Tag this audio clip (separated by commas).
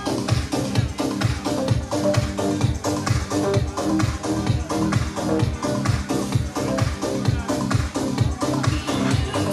Dance music, Music